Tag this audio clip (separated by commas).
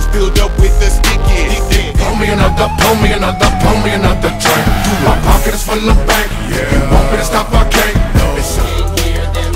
Music